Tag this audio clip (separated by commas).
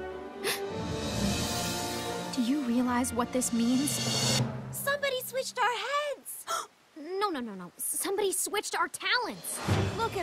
Music, Speech